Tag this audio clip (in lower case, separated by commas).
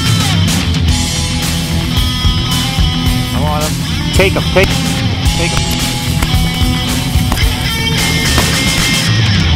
punk rock, music, speech